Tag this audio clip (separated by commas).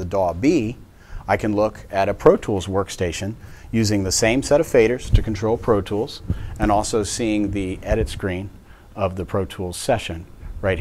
Speech